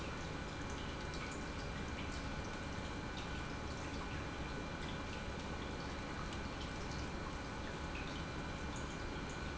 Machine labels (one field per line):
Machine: pump